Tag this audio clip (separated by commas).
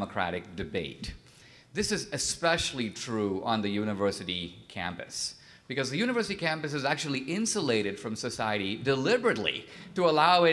Narration, Male speech, Speech